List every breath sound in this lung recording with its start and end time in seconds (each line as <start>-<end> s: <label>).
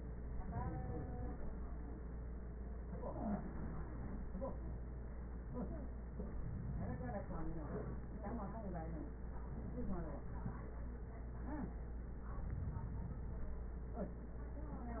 No breath sounds were labelled in this clip.